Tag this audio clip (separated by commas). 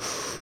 Breathing, Respiratory sounds